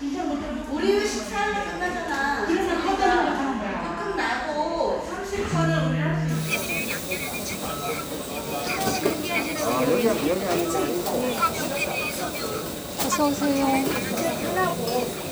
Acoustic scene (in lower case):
crowded indoor space